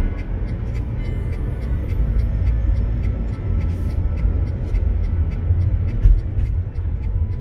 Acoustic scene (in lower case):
car